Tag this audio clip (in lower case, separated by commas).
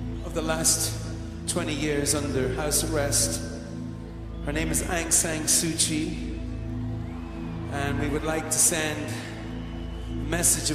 speech, music